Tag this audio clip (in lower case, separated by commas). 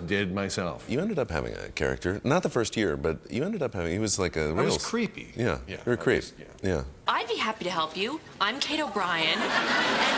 speech